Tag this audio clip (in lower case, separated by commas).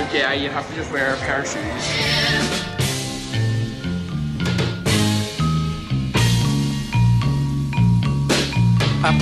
music